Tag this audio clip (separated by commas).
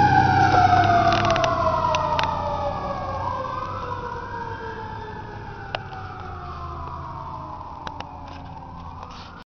Vehicle